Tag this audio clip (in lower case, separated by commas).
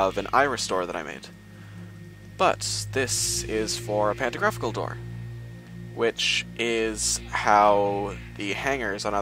speech